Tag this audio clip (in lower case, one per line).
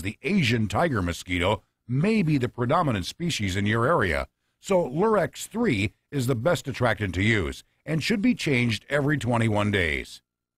speech